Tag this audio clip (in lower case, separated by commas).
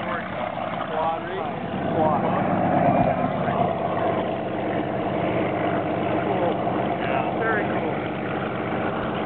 vehicle, speedboat, water vehicle, speech